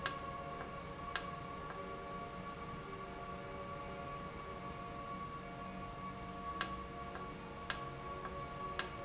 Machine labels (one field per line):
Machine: valve